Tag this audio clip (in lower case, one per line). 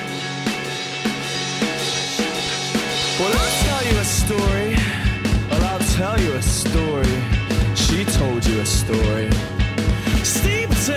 music